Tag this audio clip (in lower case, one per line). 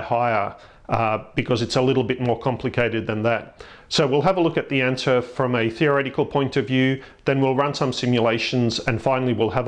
speech